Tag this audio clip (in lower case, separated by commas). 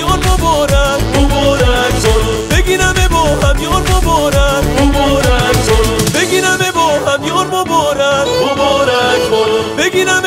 music